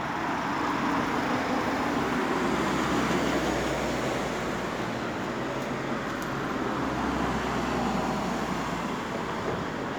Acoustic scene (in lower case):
street